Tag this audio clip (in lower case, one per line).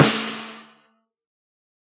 drum
music
percussion
musical instrument
snare drum